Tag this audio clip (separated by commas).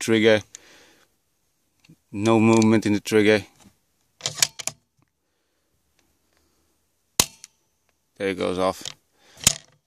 cap gun shooting, Gunshot, Cap gun